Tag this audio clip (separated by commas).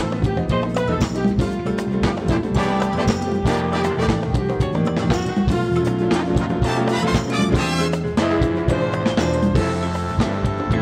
Music